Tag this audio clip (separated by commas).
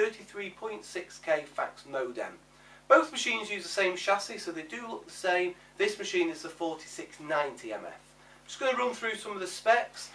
Speech